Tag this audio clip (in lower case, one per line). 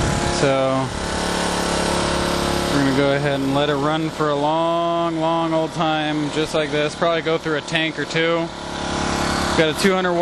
idling
speech